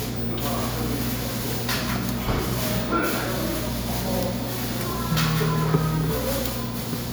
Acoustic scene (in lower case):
cafe